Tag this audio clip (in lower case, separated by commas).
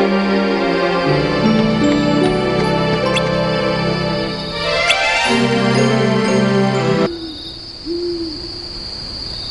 music